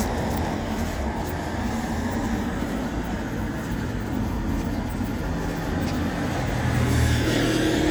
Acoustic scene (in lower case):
street